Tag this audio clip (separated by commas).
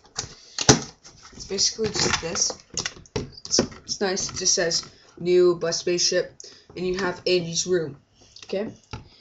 Speech